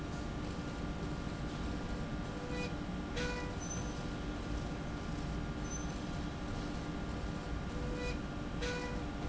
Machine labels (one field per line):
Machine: slide rail